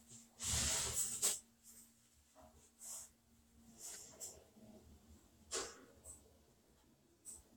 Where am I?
in an elevator